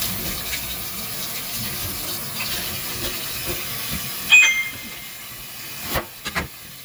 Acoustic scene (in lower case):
kitchen